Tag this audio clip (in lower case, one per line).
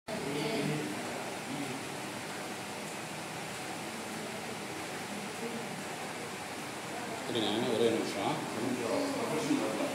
speech